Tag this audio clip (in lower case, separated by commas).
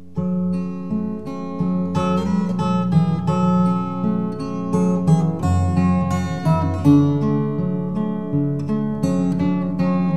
musical instrument, plucked string instrument, music, guitar